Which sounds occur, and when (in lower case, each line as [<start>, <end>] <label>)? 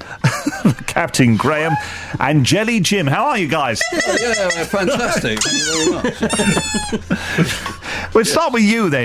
[0.00, 0.85] laughter
[0.01, 9.04] background noise
[0.71, 1.77] man speaking
[2.11, 3.76] man speaking
[4.65, 5.38] laughter
[4.71, 5.96] man speaking
[5.87, 7.01] laughter
[8.19, 9.04] man speaking